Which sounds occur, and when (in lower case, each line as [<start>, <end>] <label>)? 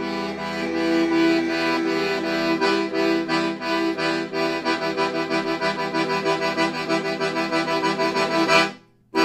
[0.01, 9.24] music